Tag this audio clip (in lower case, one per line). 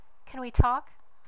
woman speaking
human voice
speech